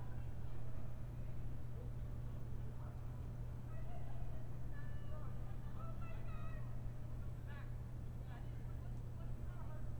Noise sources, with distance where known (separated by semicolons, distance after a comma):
unidentified human voice, far